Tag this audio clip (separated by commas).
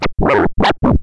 Musical instrument, Scratching (performance technique), Music